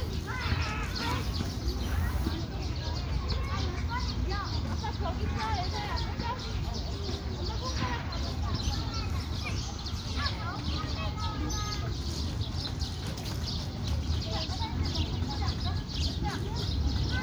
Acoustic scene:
park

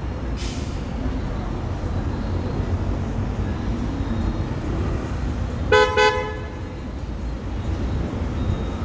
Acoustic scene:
street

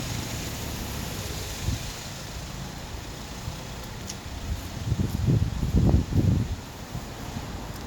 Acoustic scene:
street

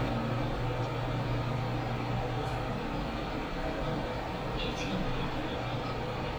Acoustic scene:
elevator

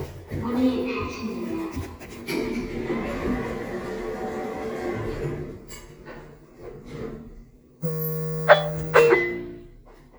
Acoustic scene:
elevator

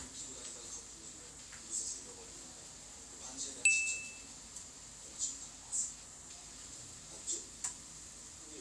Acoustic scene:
kitchen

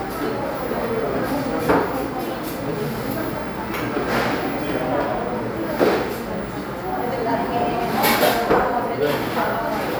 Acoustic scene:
cafe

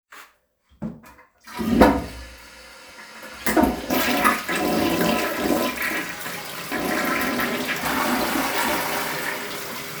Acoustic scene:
restroom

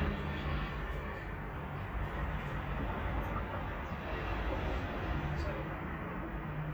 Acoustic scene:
residential area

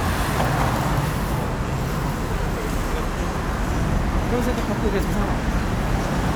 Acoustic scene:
street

